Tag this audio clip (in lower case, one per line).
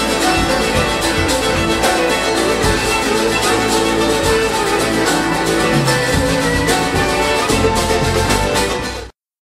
violin
music
musical instrument